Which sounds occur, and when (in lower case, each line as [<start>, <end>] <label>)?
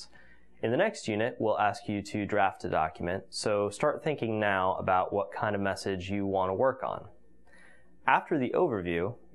[0.00, 0.51] breathing
[0.00, 9.34] mechanisms
[0.57, 3.14] male speech
[3.30, 7.20] male speech
[7.45, 7.84] breathing
[8.03, 9.13] male speech